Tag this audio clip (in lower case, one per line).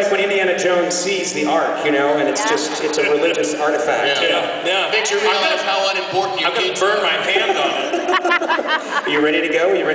speech